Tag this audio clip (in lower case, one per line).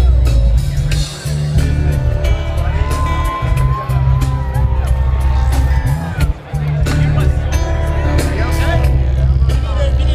speech
music